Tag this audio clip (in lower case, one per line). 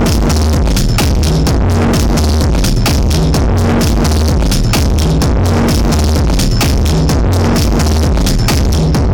crackle
music